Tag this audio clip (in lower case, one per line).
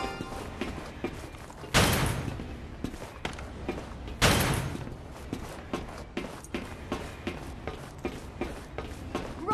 run
music
speech